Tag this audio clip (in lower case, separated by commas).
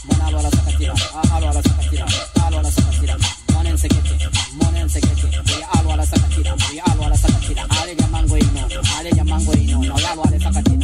music